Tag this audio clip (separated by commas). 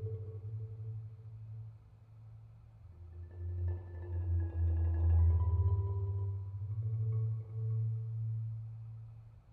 Mallet percussion, Glockenspiel, Marimba, Percussion